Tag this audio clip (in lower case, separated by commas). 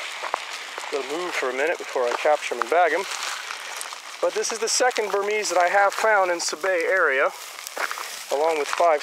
outside, rural or natural, speech